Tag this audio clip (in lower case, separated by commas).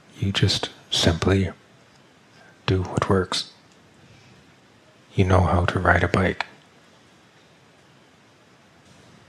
speech